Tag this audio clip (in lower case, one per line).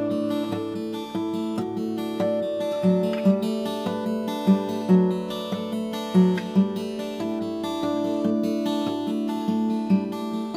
acoustic guitar
playing acoustic guitar
music